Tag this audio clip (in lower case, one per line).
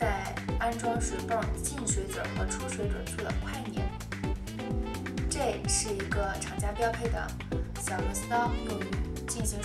music
speech